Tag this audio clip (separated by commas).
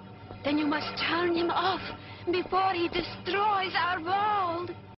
Speech